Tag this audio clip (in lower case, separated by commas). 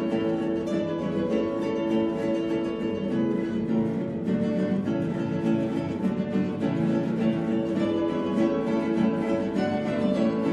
guitar, musical instrument, strum, plucked string instrument, music